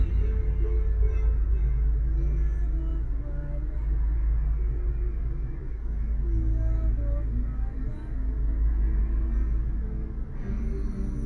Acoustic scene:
car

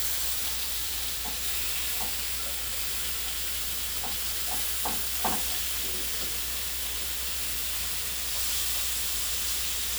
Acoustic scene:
kitchen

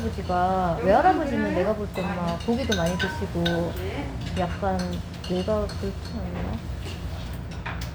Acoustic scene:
restaurant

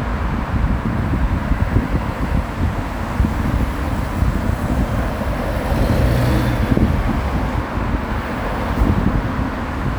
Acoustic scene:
street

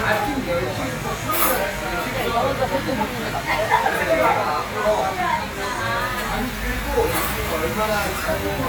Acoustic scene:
crowded indoor space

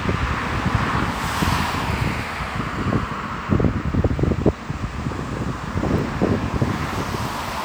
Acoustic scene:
street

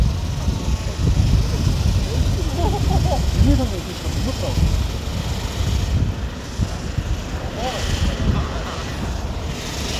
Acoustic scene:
residential area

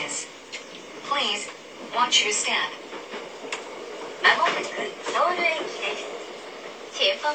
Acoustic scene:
subway train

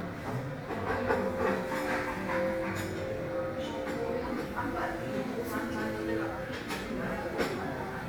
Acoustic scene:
crowded indoor space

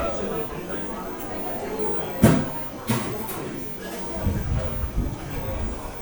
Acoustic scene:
cafe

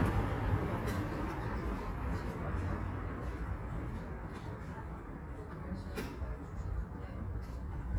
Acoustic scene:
residential area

